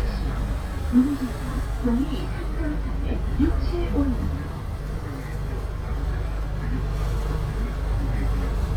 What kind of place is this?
bus